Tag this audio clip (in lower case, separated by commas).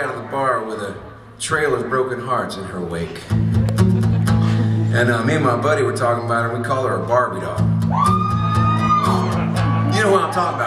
speech, music